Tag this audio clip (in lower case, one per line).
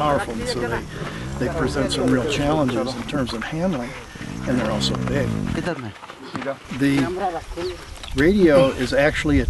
alligators